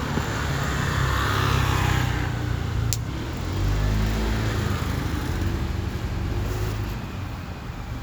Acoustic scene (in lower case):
street